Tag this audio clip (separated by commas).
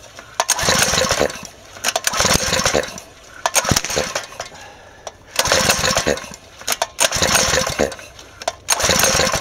pawl, Mechanisms, Gears